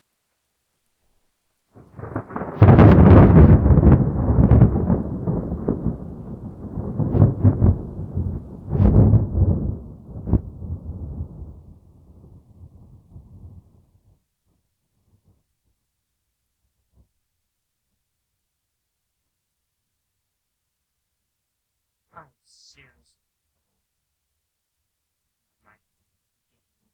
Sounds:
thunderstorm, thunder

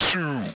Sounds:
speech, human voice, speech synthesizer

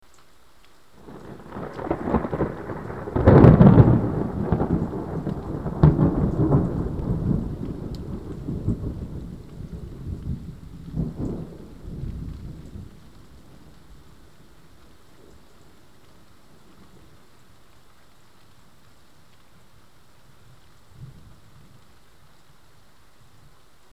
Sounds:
thunderstorm, thunder

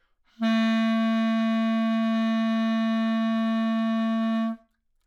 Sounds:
music, musical instrument, wind instrument

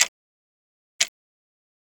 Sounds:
mechanisms, clock

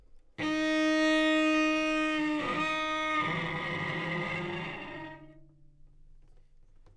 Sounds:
music, musical instrument, bowed string instrument

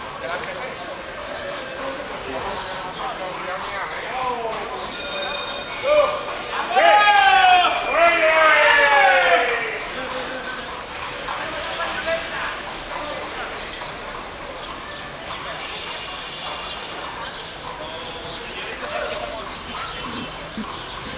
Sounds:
animal, livestock, shout, human voice

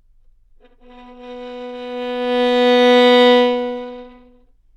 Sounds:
musical instrument, bowed string instrument, music

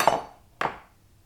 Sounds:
silverware, home sounds

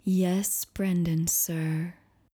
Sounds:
human voice, speech, woman speaking

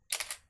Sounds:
camera, mechanisms

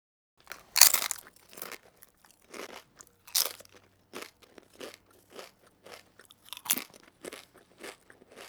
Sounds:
mastication

